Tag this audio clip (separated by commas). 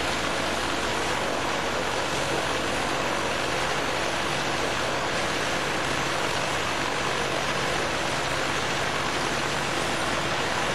Speech